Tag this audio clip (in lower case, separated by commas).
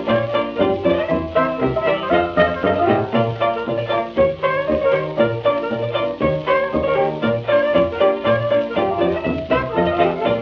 orchestra, music